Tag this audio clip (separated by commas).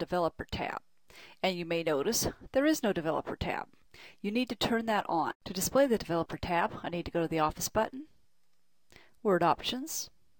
Speech